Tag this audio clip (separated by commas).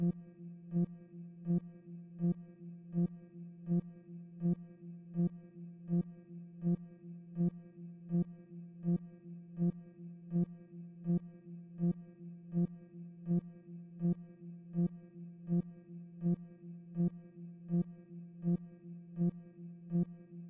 Alarm